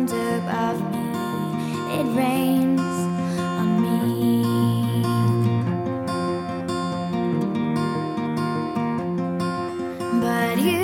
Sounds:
Music, Pop music

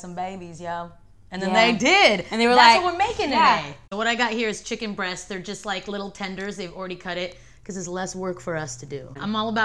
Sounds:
Speech

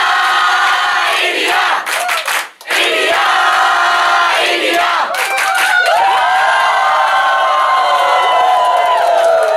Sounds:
people cheering

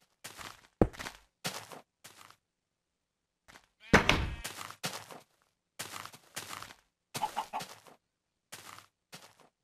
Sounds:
Slam, Tap

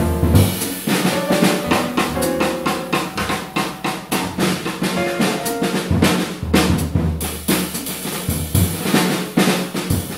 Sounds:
Cymbal, Hi-hat

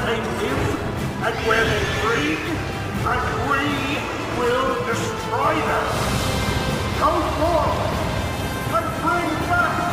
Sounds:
Speech, Music

